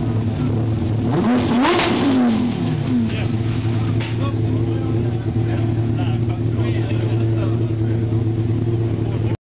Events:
[0.00, 9.34] medium engine (mid frequency)
[0.96, 2.84] revving
[2.43, 2.54] generic impact sounds
[3.08, 3.30] man speaking
[3.98, 4.18] generic impact sounds
[4.16, 7.68] man speaking

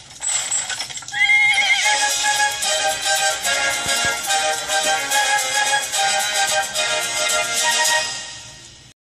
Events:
[0.05, 1.11] generic impact sounds
[1.09, 1.94] neigh
[1.73, 8.91] music
[3.80, 3.88] clip-clop
[3.99, 4.07] clip-clop
[4.52, 4.58] clip-clop
[4.78, 4.88] clip-clop
[6.28, 6.34] clip-clop
[6.43, 6.51] clip-clop
[8.59, 8.68] generic impact sounds

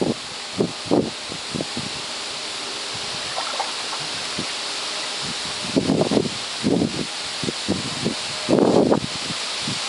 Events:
[0.00, 9.85] mechanisms
[3.32, 4.05] water
[9.62, 9.83] wind noise (microphone)

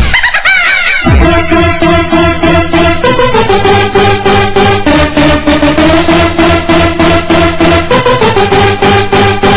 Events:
[0.00, 0.09] music
[0.00, 1.03] laughter
[0.98, 9.55] music

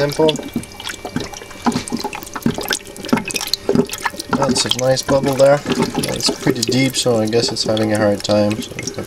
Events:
[0.00, 0.58] man speaking
[0.00, 9.05] mechanisms
[0.00, 9.05] trickle
[4.28, 8.62] man speaking

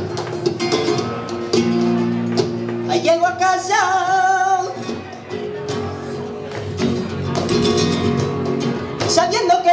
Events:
[0.00, 9.72] music
[2.87, 4.73] male singing
[9.01, 9.72] male singing

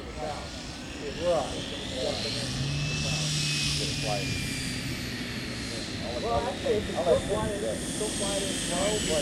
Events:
[0.00, 0.53] male speech
[0.00, 9.21] conversation
[0.00, 9.21] mechanisms
[0.00, 9.21] wind
[0.88, 1.55] male speech
[1.74, 2.43] male speech
[2.85, 3.28] male speech
[3.70, 4.34] male speech
[5.68, 7.77] male speech
[7.95, 9.21] male speech

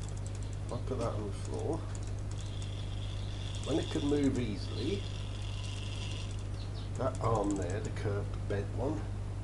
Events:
[0.00, 0.77] pawl
[0.00, 9.43] mechanisms
[0.22, 0.55] bird vocalization
[0.66, 1.78] man speaking
[0.67, 0.83] bird vocalization
[0.96, 1.10] generic impact sounds
[1.37, 6.62] pawl
[3.64, 4.99] man speaking
[6.53, 6.91] bird vocalization
[6.90, 7.80] pawl
[6.92, 8.26] man speaking
[8.28, 8.40] generic impact sounds
[8.48, 8.96] man speaking
[8.85, 9.06] generic impact sounds

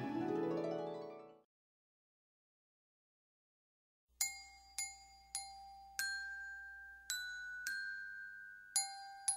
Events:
[0.00, 1.47] music
[4.21, 9.35] music

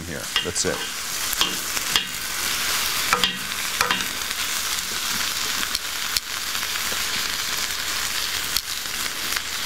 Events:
[0.01, 0.87] male speech
[0.79, 9.65] frying (food)
[1.27, 2.16] generic impact sounds
[3.13, 4.01] generic impact sounds

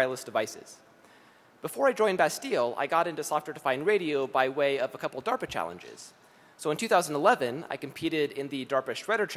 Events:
[0.01, 0.75] male speech
[0.01, 9.35] background noise
[1.63, 6.09] male speech
[6.60, 9.35] male speech

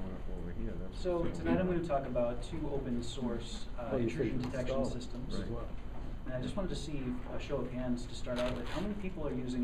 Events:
[0.00, 3.39] male speech
[0.01, 9.63] background noise
[3.34, 3.65] breathing
[3.70, 5.65] male speech
[5.91, 6.19] breathing
[6.19, 7.99] male speech
[8.25, 9.63] male speech

